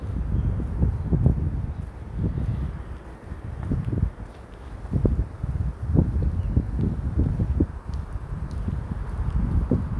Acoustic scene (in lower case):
residential area